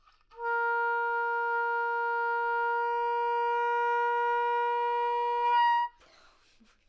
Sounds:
Music, Musical instrument, woodwind instrument

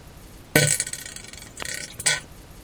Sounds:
Fart

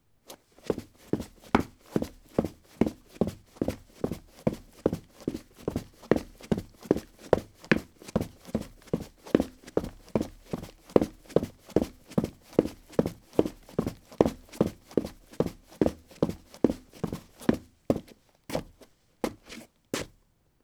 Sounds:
Run

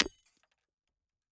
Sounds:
Shatter, Glass

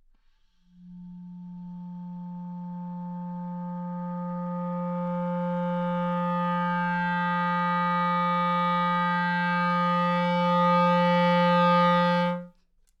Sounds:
Musical instrument, Music, woodwind instrument

